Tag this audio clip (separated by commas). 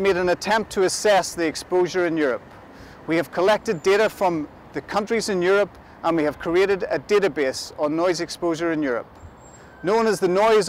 Speech